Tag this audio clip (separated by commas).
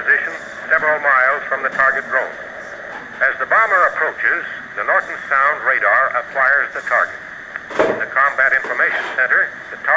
Speech